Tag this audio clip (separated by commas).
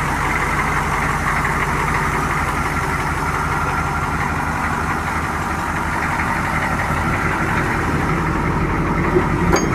Truck, Vehicle